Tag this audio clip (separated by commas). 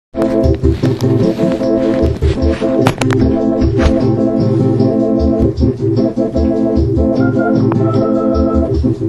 playing electronic organ